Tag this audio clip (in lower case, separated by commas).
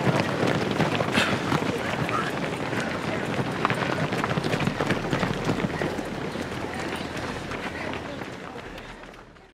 people running, run, speech, outside, rural or natural